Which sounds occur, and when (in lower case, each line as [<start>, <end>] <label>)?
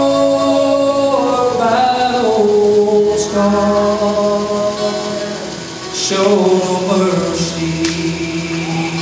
[0.00, 5.39] male singing
[0.00, 9.01] mechanisms
[0.00, 9.01] music
[5.95, 9.01] male singing
[7.83, 8.04] generic impact sounds